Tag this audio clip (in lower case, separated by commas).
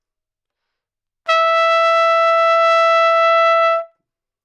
trumpet, brass instrument, music, musical instrument